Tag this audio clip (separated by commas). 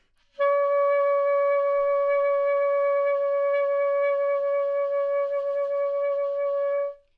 Music, Musical instrument, Wind instrument